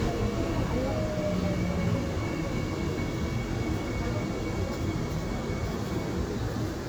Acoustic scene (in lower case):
subway train